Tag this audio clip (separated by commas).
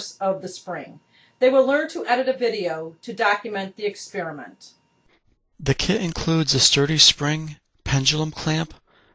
Speech